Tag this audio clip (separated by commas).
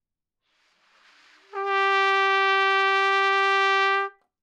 Music, Brass instrument, Musical instrument, Trumpet